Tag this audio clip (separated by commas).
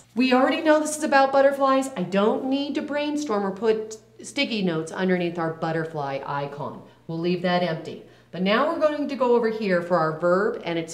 Speech